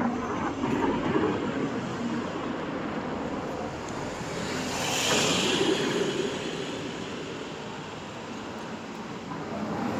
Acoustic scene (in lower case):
street